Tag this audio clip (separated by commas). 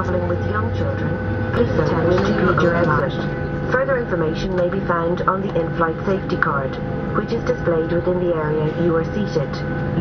Vehicle, Speech